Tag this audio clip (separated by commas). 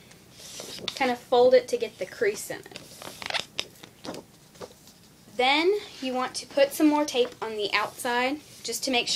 inside a small room, Speech